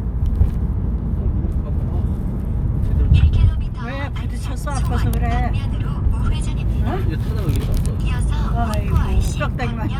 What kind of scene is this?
car